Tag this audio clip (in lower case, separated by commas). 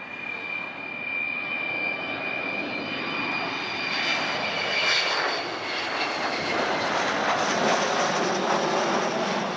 aircraft, airplane, vehicle